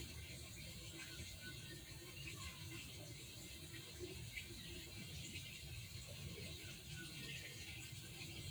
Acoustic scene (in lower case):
park